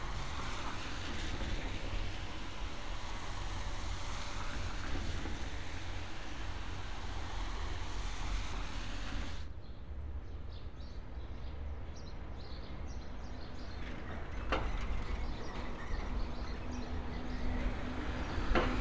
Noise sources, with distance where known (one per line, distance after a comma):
engine of unclear size